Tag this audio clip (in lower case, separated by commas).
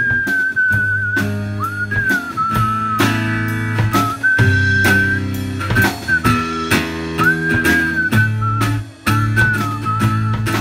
music, whistling, people whistling